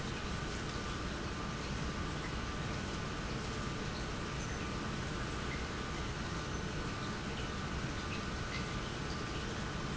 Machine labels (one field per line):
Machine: pump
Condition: normal